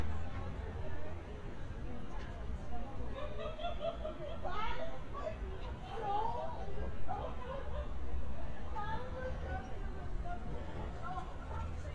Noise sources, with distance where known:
person or small group shouting

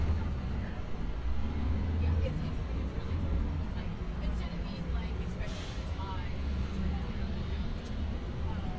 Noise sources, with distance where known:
medium-sounding engine, near
unidentified human voice

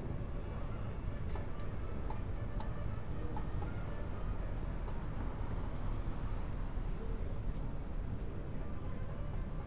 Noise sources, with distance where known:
music from an unclear source, far

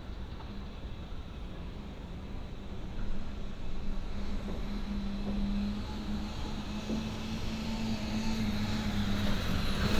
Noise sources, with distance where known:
engine of unclear size, far

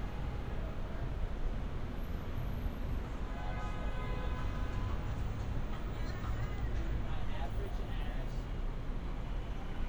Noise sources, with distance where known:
engine of unclear size
car horn, far
music from a moving source, near
person or small group talking, near

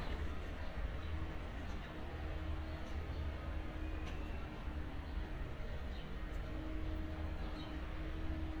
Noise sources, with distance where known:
background noise

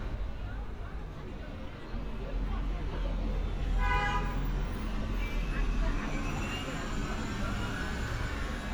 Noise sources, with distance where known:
car horn, near
person or small group talking, far

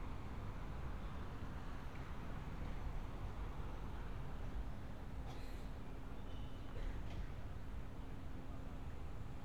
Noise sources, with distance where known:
background noise

